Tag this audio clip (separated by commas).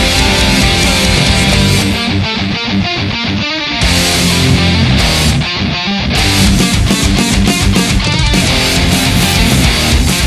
Electric guitar, Music, Musical instrument, Plucked string instrument, Drum kit, Drum, Guitar